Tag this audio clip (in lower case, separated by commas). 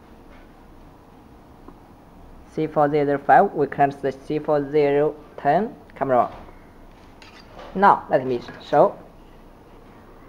speech